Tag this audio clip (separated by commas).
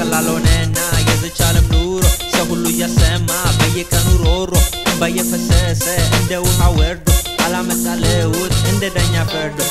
Exciting music, Music